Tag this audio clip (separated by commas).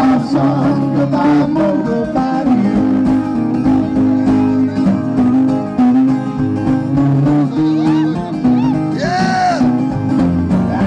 Music, Singing